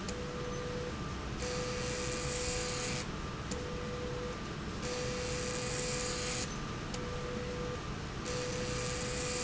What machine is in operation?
slide rail